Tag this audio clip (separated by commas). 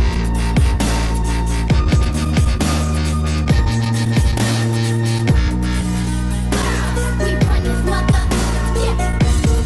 Music